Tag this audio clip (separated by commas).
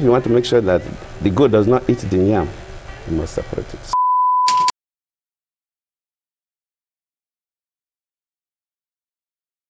Speech, Music